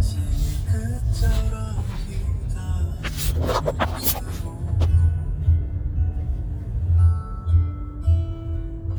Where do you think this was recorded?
in a car